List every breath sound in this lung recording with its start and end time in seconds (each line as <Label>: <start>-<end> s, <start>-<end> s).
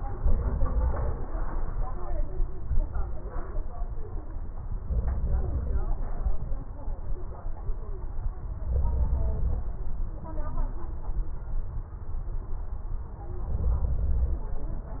Inhalation: 0.00-1.18 s, 4.85-5.84 s, 8.69-9.70 s, 13.48-14.49 s